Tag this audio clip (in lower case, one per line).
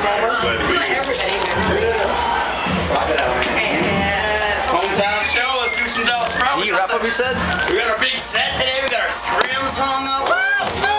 speech
music